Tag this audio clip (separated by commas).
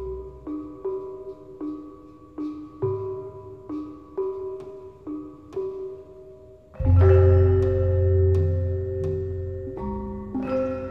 Classical music, Music